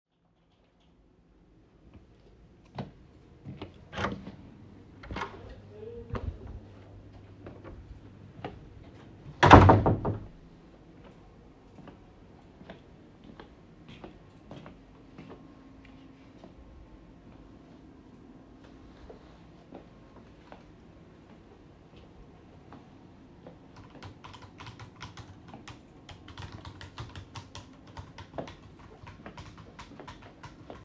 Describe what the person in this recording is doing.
I walked to the door, opened the door, walked to a colleague that was typing on a keyboard.